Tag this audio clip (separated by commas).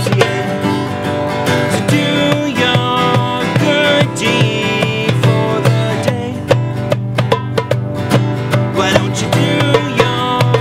Music